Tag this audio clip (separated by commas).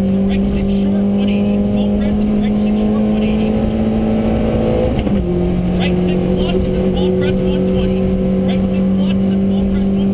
Car passing by